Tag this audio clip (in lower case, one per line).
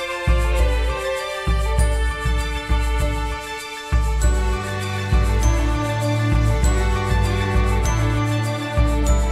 music